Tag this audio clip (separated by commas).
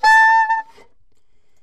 woodwind instrument, Musical instrument, Music